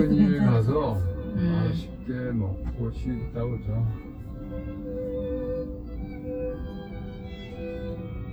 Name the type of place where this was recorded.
car